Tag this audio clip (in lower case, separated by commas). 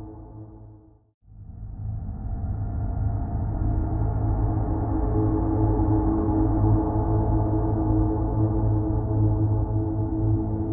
music